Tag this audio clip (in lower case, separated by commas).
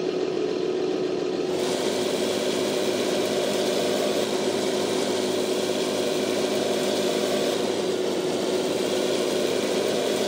medium engine (mid frequency), vehicle